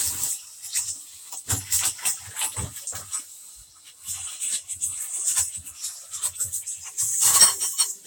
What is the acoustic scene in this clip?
kitchen